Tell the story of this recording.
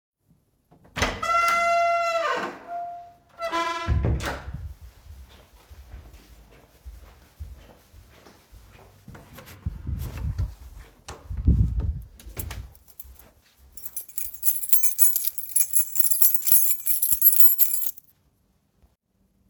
I opened the door and then walked to the desk and jingled my keys next to my phone